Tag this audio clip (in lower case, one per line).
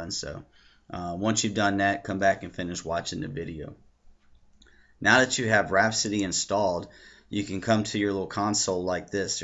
clicking